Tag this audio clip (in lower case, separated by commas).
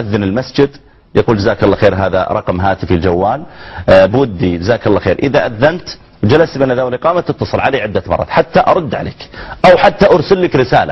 speech